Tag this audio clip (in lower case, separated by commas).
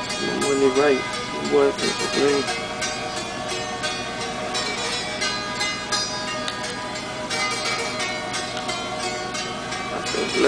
music, speech